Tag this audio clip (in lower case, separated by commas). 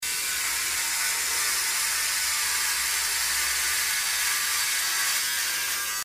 domestic sounds